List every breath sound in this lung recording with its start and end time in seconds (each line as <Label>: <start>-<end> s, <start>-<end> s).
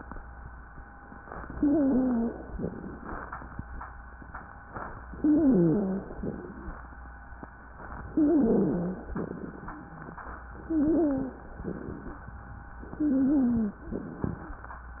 Inhalation: 1.54-2.52 s, 5.18-6.17 s, 8.10-9.09 s, 10.57-11.56 s, 12.92-13.91 s
Wheeze: 1.54-2.52 s, 5.18-6.17 s, 8.10-9.09 s, 10.57-11.56 s, 12.92-13.91 s